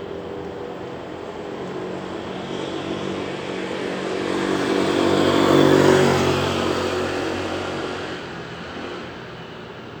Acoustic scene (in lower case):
street